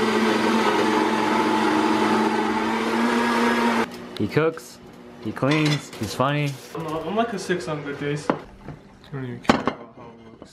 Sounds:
Blender

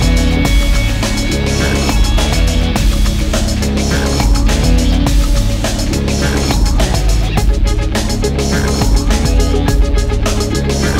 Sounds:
Music

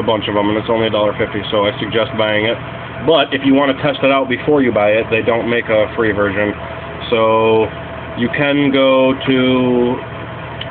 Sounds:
Speech

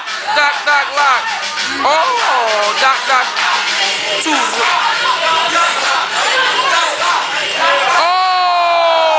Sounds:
Music, Speech

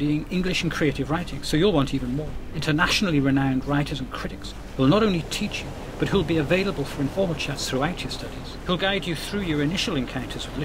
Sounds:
Speech, Music

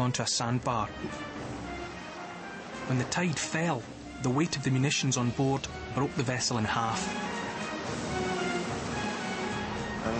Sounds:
Music, Speech

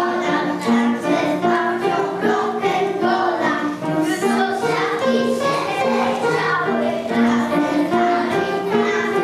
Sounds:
Music

